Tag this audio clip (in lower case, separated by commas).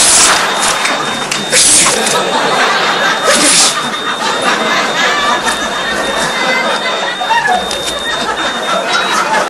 sneeze